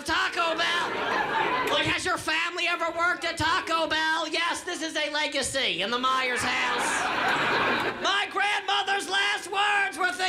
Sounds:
Speech

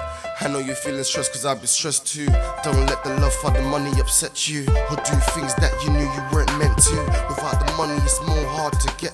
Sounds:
Rapping, Music

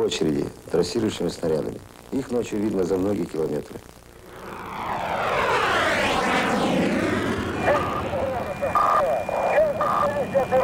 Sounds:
airplane flyby

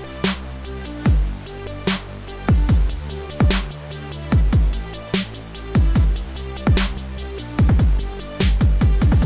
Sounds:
Music

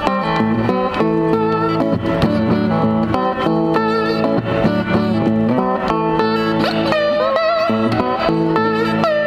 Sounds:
playing steel guitar

